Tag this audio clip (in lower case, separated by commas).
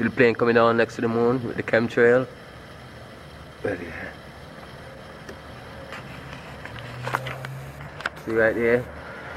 speech